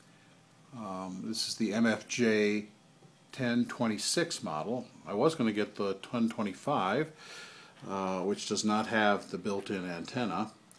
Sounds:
Speech

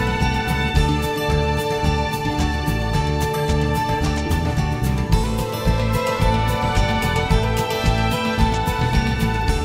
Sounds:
Tender music, Music

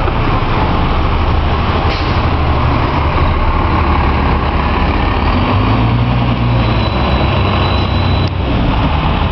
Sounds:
driving buses, outside, urban or man-made, Vehicle, Bus

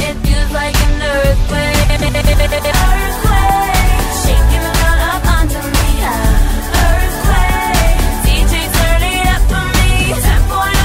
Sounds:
Music

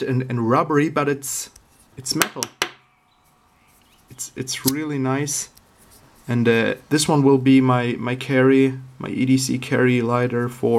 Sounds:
strike lighter

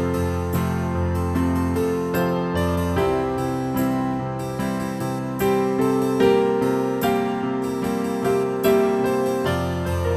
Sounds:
Music

